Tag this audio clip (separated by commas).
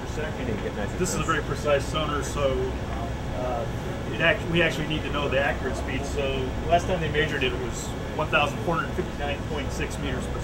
Speech